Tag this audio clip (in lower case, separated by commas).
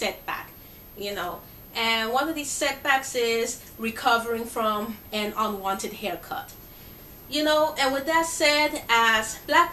speech